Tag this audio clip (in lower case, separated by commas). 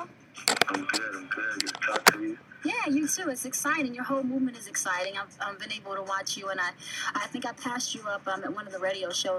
speech